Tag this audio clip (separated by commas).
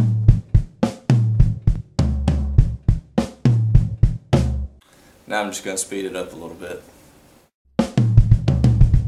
Music, Speech, Drum